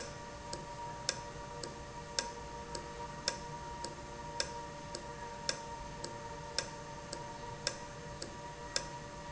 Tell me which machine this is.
valve